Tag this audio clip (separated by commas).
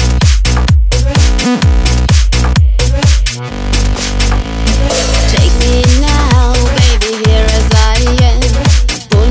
Music, Electronic dance music, Dance music